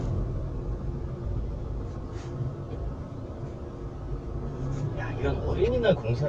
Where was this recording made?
in a car